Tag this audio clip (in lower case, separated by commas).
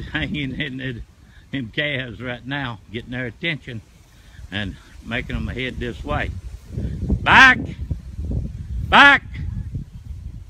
speech